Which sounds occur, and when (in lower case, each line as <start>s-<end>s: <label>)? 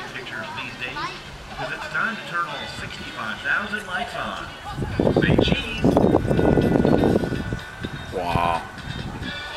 0.0s-9.5s: music
0.0s-1.2s: man speaking
0.9s-1.3s: kid speaking
1.5s-4.6s: man speaking
4.6s-9.5s: wind
5.1s-5.8s: man speaking
8.0s-8.7s: man speaking